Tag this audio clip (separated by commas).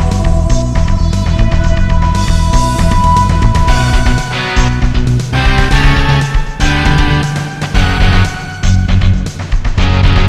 Music